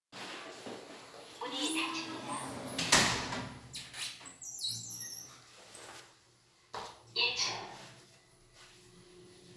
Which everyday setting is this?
elevator